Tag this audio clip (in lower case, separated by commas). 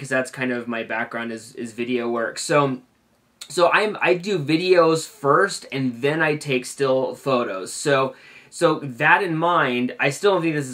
speech